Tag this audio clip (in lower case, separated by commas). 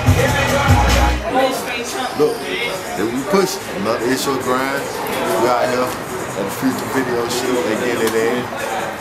speech, music